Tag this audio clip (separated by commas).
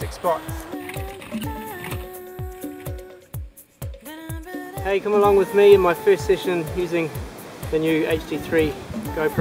Music, Speech